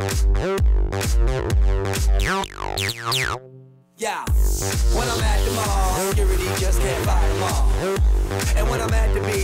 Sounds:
music
inside a large room or hall

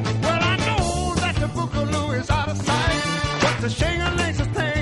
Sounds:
music

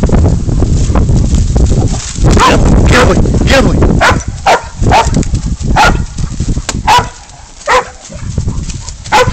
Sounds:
dog baying

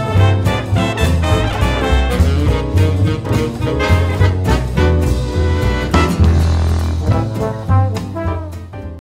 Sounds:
music

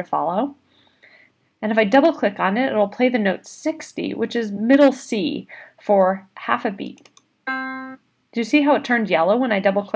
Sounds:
speech

